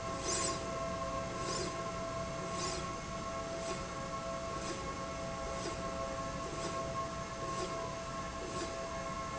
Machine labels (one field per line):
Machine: slide rail